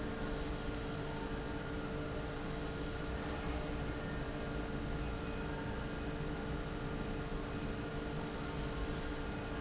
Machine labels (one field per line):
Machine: fan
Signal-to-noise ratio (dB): -6 dB